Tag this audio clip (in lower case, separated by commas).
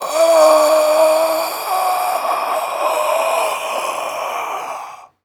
respiratory sounds, breathing